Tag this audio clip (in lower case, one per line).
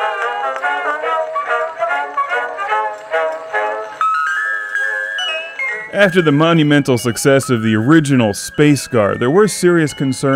music
speech